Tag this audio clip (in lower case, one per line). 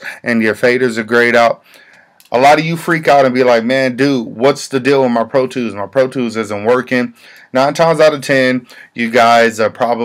speech